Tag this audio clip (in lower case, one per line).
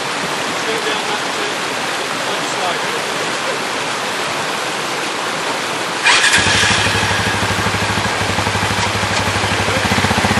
speech